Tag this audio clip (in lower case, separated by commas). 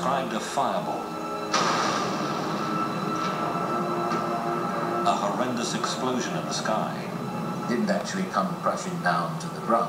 speech